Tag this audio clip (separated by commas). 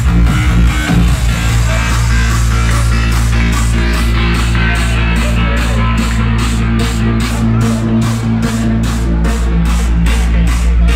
Music